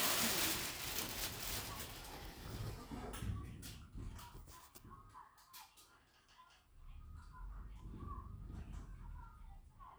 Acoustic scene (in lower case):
elevator